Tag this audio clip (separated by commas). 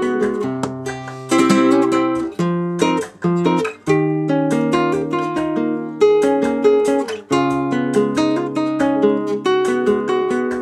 Acoustic guitar, Plucked string instrument, Musical instrument, Guitar, Strum, Music